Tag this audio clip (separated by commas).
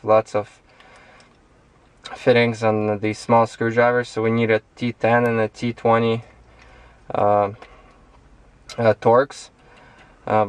Speech